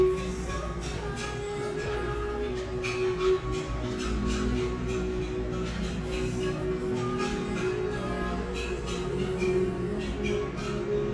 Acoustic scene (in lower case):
cafe